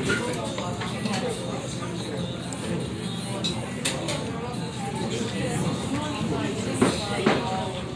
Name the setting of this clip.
crowded indoor space